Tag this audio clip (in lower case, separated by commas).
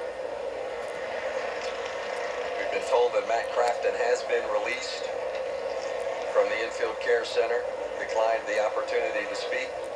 speech, vehicle